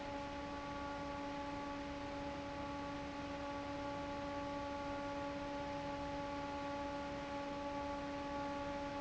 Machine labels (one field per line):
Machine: fan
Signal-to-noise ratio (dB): 6 dB